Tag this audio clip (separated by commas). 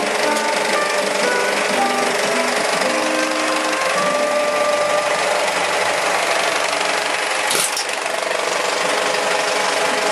Music, Engine